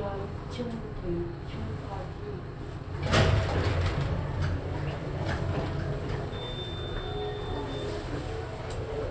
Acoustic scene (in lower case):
elevator